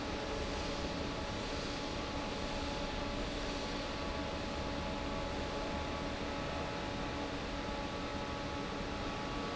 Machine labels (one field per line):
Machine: fan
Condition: normal